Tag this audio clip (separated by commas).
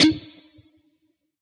Plucked string instrument, Music, Musical instrument, Guitar